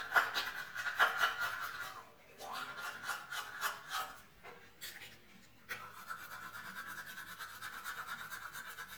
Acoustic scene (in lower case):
restroom